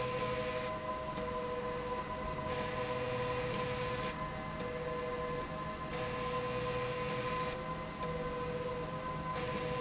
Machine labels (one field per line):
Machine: slide rail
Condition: abnormal